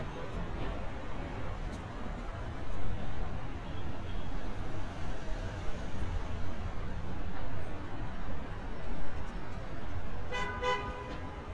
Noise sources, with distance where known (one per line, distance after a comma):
car horn, near